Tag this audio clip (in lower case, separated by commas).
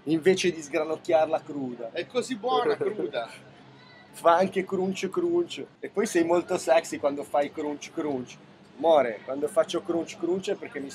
speech